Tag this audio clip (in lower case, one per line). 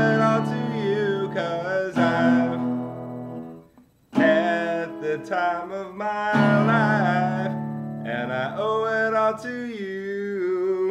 guitar
acoustic guitar
musical instrument
music
plucked string instrument
singing